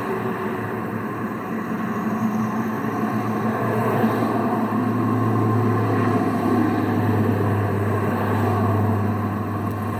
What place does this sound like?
street